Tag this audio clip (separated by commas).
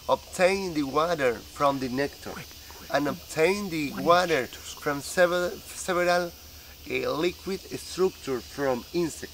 Cricket, Insect